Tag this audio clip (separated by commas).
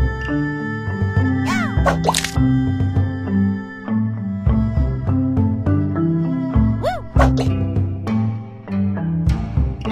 pop, Music